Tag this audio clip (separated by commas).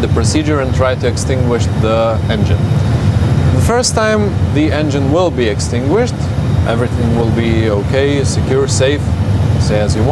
Vehicle, Heavy engine (low frequency), Speech